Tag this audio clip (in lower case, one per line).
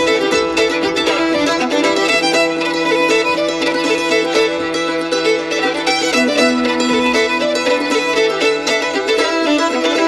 cello
music
violin
musical instrument
bowed string instrument
mandolin